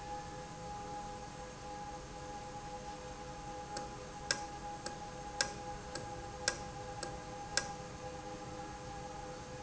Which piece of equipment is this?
valve